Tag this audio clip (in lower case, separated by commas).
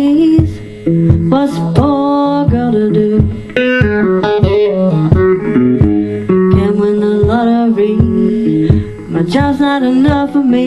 plucked string instrument, musical instrument, electric guitar, guitar, music